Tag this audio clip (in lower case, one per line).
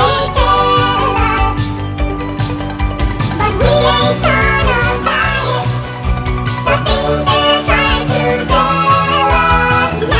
music